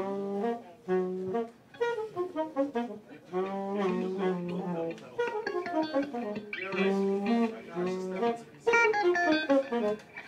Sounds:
music
speech

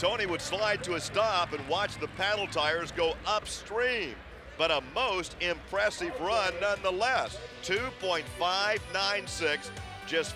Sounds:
speech
music

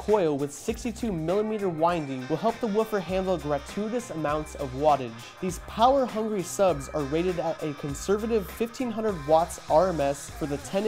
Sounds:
music
speech

